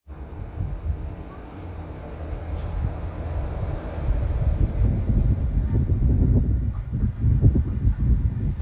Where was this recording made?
in a residential area